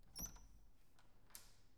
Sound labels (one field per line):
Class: door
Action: opening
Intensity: low